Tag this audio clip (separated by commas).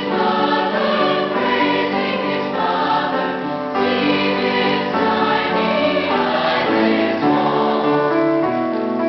Choir, inside a large room or hall, Music, Singing